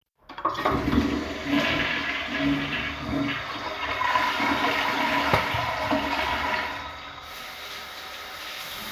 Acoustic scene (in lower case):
restroom